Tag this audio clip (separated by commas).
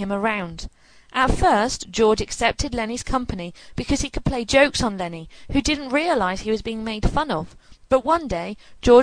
Speech